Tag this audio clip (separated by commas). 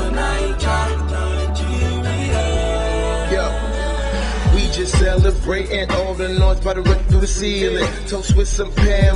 Music